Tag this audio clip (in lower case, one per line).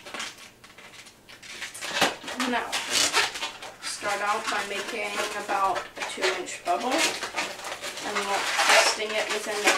speech